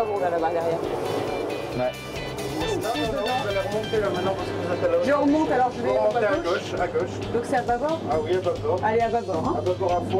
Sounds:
Speech, Music

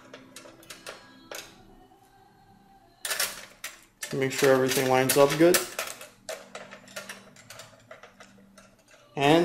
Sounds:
Speech

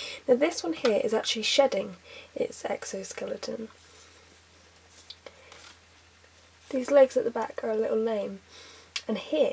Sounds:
Speech

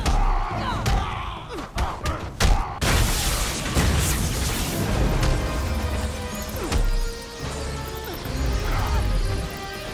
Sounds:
Whack, Sound effect

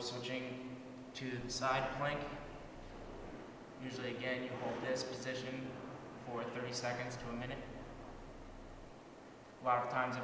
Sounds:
inside a small room, Speech

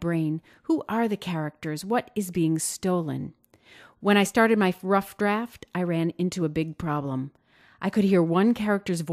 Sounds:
Speech

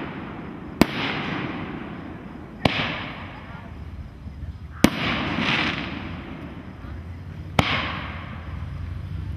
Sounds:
Fireworks, fireworks banging, Speech

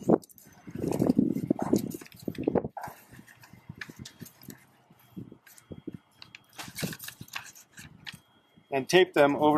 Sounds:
Speech

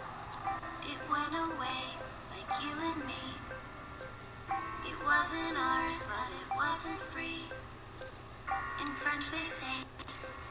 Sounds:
Music

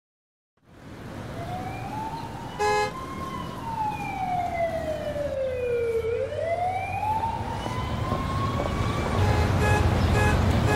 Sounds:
Vehicle horn, Car

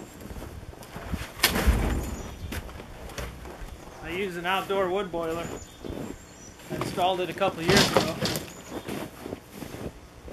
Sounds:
outside, rural or natural, Speech, Bird

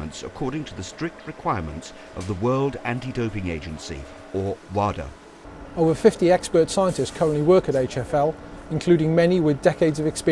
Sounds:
Speech

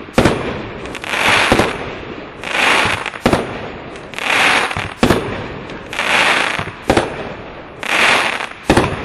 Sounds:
Fireworks, Firecracker, fireworks banging, outside, urban or man-made

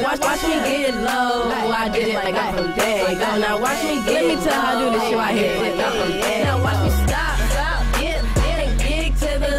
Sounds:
Music

